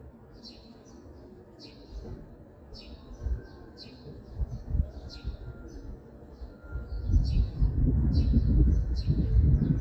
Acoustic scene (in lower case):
residential area